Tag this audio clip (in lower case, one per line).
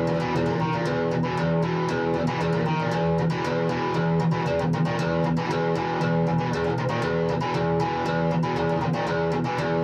electric guitar
music
tapping (guitar technique)